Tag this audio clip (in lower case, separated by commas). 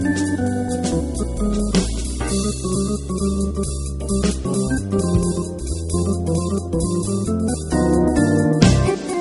music, rhythm and blues